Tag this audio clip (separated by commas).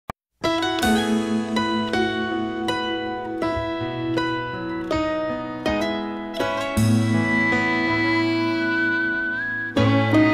Tender music, Music